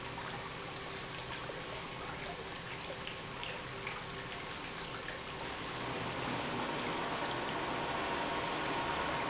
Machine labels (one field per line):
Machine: pump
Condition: normal